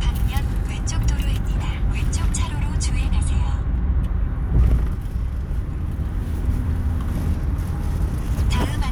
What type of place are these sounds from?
car